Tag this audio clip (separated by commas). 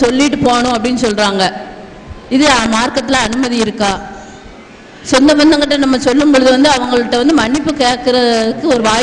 Speech, Narration, Female speech